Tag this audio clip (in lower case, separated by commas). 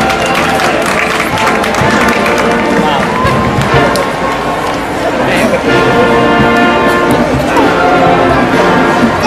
speech, music